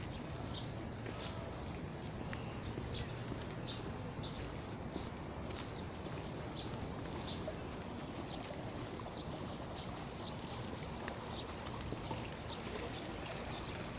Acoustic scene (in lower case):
park